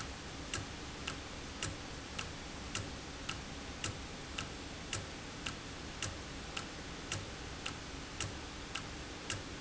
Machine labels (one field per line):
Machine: valve